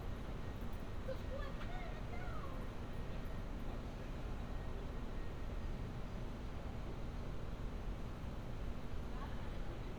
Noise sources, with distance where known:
background noise

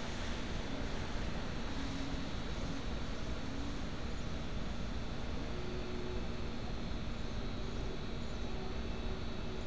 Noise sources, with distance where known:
large-sounding engine, far

